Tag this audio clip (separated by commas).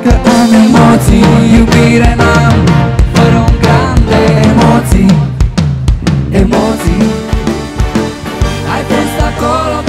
Music